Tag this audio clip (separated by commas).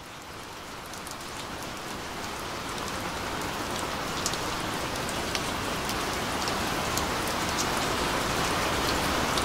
raining